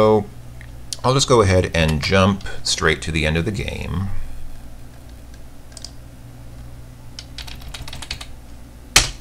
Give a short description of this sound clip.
A man speaking, a mouse clicking and keyboard keys clicking